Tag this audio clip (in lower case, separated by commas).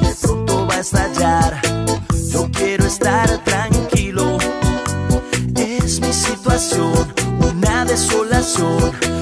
afrobeat, music